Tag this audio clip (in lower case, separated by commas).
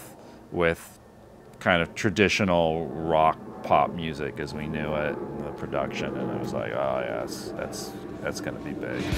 speech, grunge, music